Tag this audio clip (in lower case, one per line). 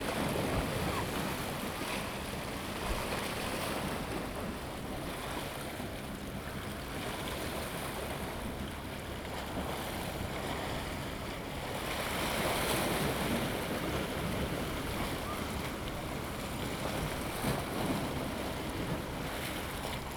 waves
ocean
water